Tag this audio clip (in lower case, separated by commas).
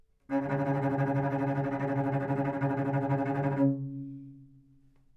music, bowed string instrument, musical instrument